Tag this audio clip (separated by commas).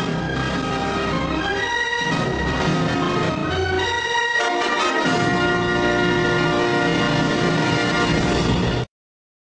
Music